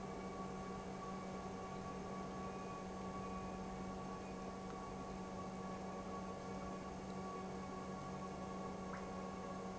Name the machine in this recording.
pump